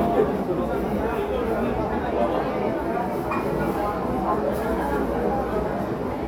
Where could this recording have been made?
in a crowded indoor space